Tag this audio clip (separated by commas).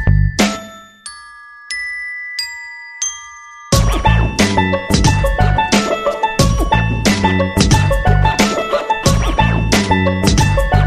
Glockenspiel, Music